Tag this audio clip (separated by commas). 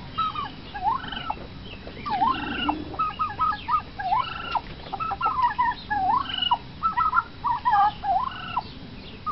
Gobble, Fowl, turkey gobbling, Turkey